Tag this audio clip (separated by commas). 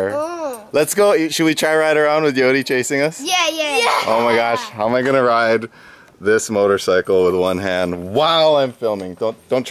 Speech